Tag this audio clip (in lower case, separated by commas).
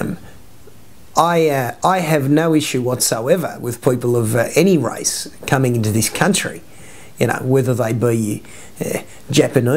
speech